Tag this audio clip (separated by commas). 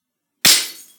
Shatter, Glass